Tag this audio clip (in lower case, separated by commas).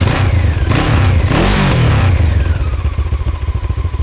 accelerating, motor vehicle (road), engine, vehicle, motorcycle